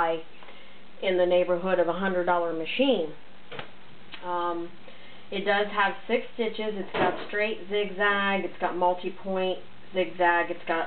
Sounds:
Speech

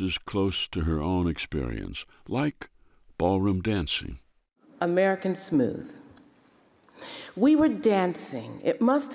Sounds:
Speech

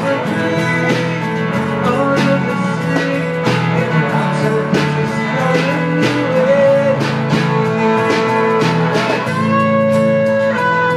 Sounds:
Guitar, Singing

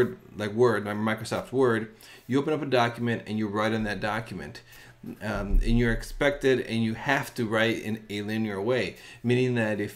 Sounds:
Speech

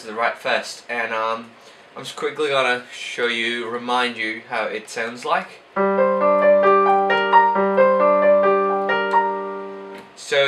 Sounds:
Speech, Music

